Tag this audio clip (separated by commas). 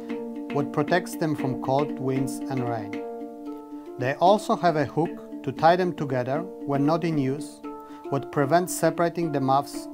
Speech, Music